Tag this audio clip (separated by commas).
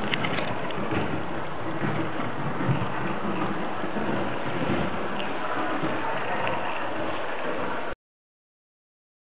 Train